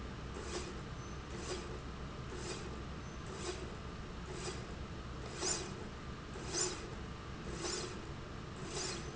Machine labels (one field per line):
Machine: slide rail